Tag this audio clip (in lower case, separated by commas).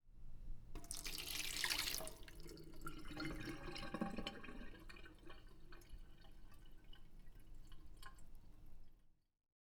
domestic sounds, sink (filling or washing)